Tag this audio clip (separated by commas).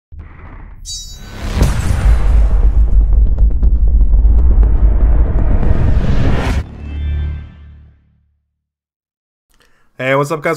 Speech, Music